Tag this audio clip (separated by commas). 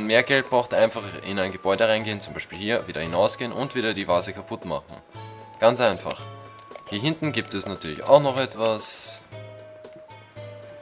Music, Speech